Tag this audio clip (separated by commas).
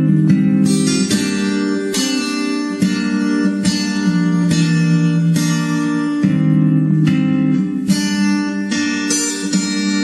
Plucked string instrument, Guitar, Musical instrument, Music